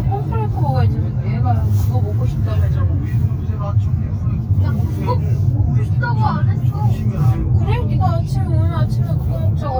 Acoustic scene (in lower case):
car